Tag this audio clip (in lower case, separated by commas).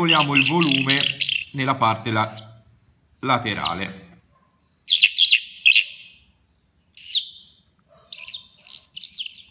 tweet, speech